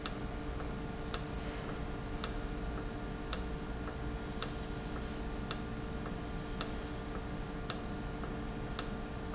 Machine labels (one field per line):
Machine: valve